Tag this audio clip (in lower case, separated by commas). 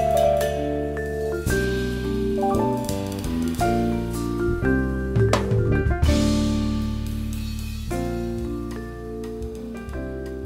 playing vibraphone